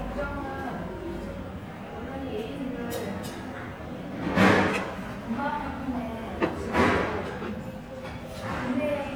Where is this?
in a restaurant